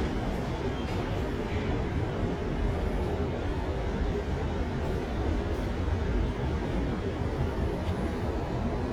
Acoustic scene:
subway station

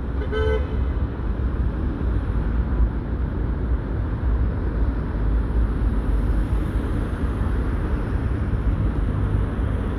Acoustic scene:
street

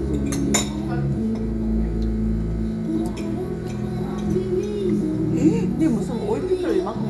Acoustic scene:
restaurant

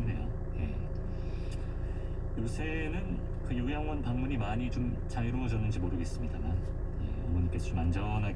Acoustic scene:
car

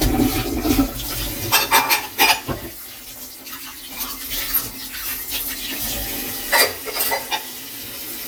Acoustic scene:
kitchen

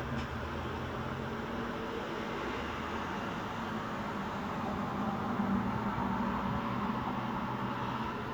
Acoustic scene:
street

